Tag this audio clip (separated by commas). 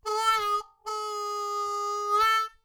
Music, Harmonica, Musical instrument